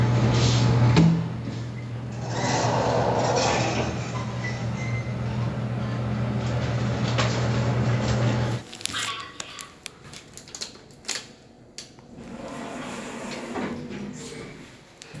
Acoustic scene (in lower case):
elevator